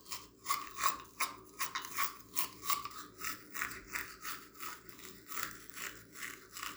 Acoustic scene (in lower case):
restroom